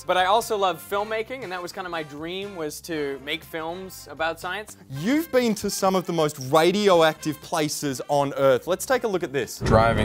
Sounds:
music
speech

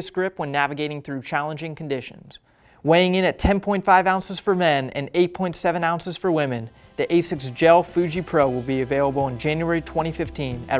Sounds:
speech

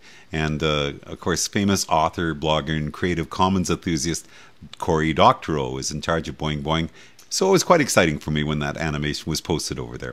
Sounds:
speech

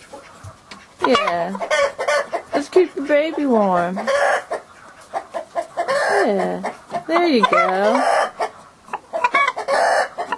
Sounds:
fowl
rooster
cluck

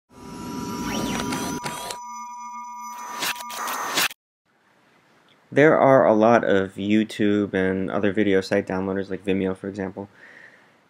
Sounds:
speech

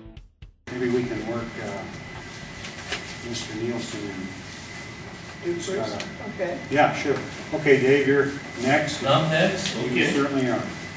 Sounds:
speech

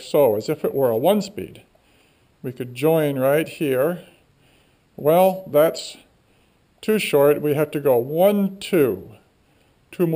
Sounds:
speech

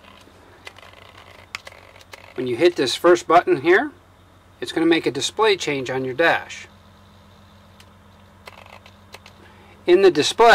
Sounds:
speech

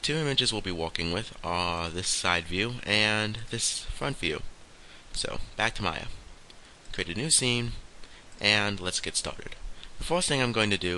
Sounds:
speech

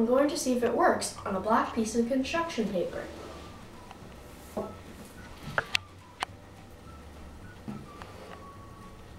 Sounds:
child speech

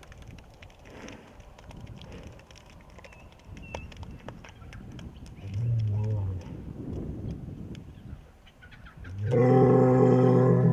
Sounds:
bull bellowing

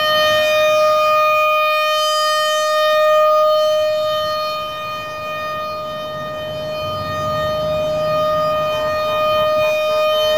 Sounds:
civil defense siren
siren

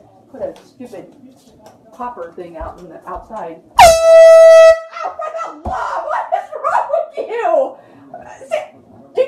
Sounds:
air horn

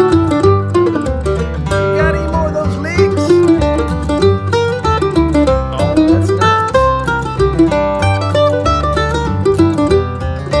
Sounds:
playing mandolin

